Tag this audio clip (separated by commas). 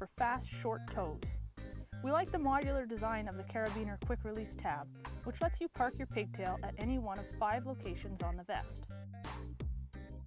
Music, Speech